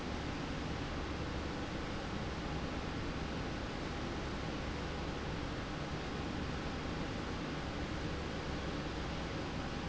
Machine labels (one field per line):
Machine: slide rail